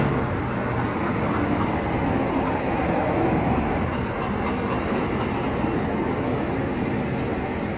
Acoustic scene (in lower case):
street